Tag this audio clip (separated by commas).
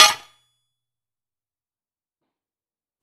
Tools